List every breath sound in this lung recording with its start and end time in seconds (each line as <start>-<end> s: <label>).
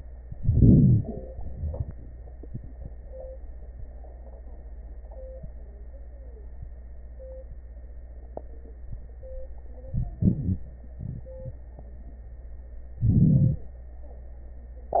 0.32-1.00 s: crackles
0.33-1.02 s: inhalation
12.99-13.68 s: inhalation